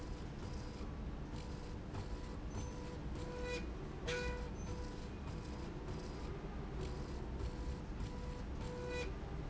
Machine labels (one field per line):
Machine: slide rail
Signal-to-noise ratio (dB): 0 dB